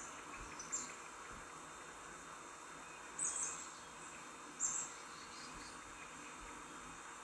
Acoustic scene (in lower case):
park